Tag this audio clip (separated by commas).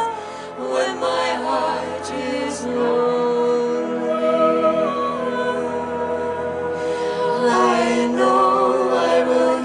Music, Humming, Singing